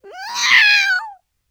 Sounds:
animal, cat, meow, domestic animals

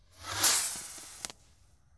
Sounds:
explosion, fireworks

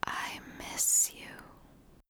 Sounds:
human voice, whispering

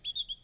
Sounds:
bird call, wild animals, animal, tweet, bird

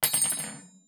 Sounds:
cutlery, domestic sounds

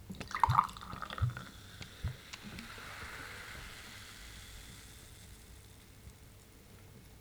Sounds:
water, gurgling

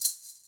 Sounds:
music, musical instrument, percussion, rattle (instrument)

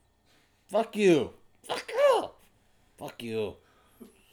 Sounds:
speech, man speaking, human voice

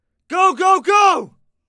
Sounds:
male speech, shout, human voice, speech

